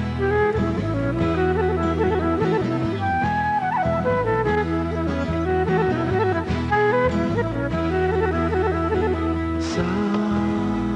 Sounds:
Music

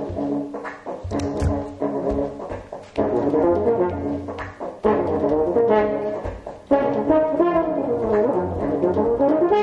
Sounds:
Music

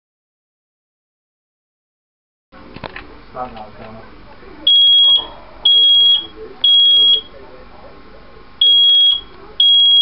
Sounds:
Speech, Alarm, smoke alarm

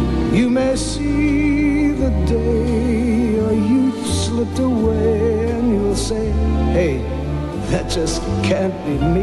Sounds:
Music

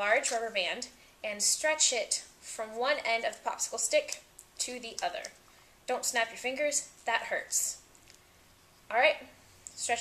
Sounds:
Speech

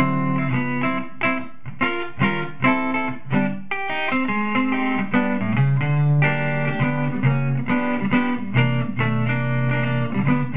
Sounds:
Music

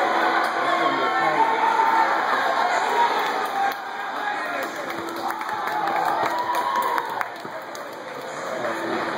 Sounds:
Run, Speech

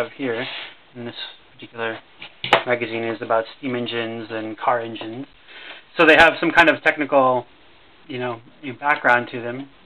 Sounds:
Speech

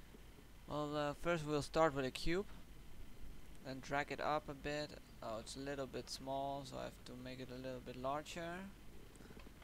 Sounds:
Speech

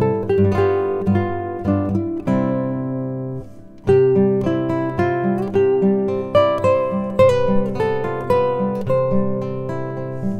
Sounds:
Music

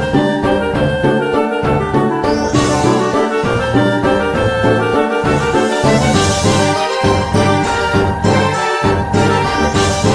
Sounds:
Soundtrack music, Music

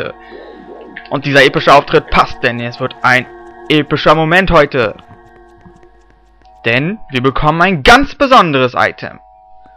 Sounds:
Music, Speech

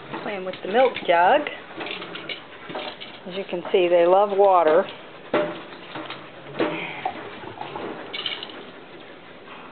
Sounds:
Speech

